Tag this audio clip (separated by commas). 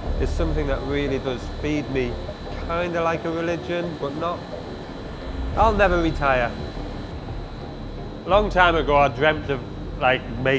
Speech